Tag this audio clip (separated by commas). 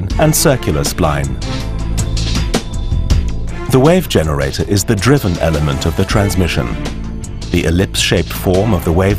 Music, Speech